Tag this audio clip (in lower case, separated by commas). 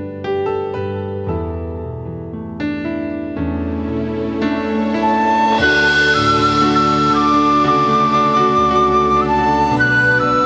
playing oboe